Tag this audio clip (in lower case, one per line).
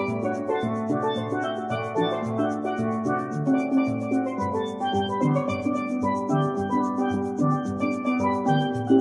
music
musical instrument